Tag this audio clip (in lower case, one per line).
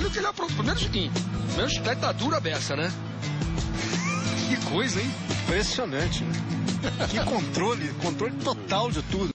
music
speech